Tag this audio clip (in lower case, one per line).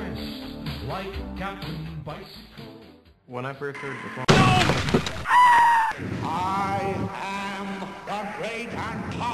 music
speech